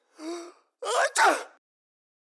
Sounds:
respiratory sounds
sneeze

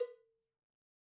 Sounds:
bell
cowbell

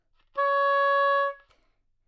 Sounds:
musical instrument
woodwind instrument
music

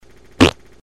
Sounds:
fart

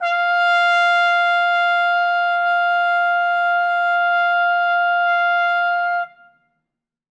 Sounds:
trumpet
musical instrument
brass instrument
music

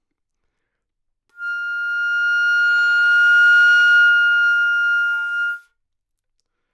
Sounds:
musical instrument
music
woodwind instrument

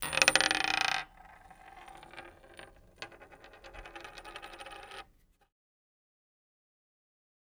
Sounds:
coin (dropping)
domestic sounds

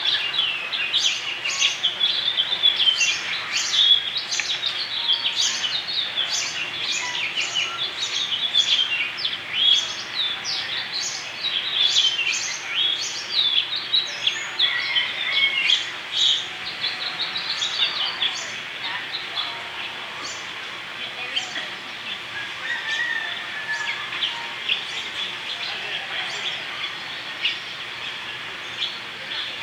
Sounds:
bird
wild animals
animal
bird vocalization

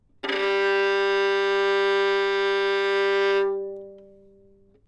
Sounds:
music
musical instrument
bowed string instrument

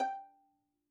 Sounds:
bowed string instrument
musical instrument
music

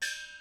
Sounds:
gong
percussion
musical instrument
music

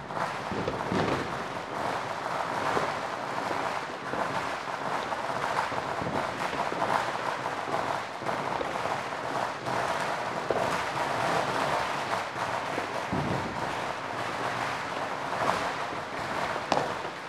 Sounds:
fireworks
explosion

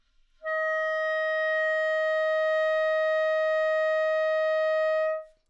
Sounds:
musical instrument
wind instrument
music

